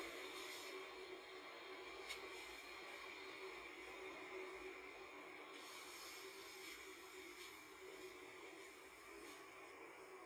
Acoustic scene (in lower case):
car